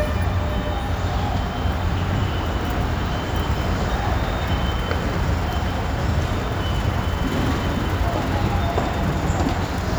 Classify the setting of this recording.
subway station